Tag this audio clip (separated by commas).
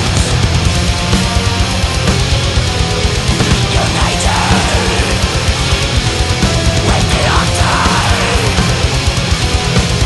Music, Heavy metal